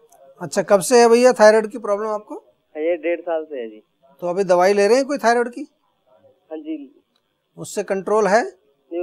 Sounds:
Speech

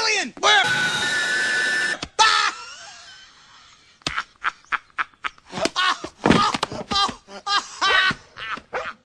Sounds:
Speech

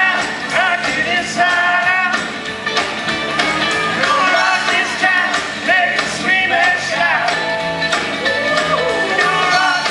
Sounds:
Music, Rock and roll

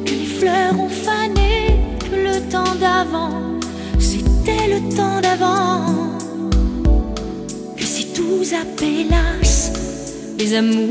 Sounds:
Music

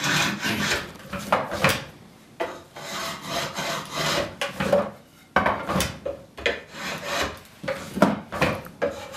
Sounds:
Filing (rasp), Wood

